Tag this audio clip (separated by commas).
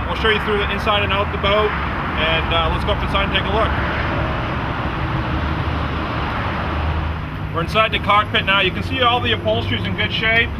Speech